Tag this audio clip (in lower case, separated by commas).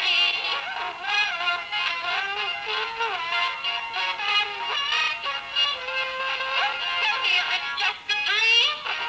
music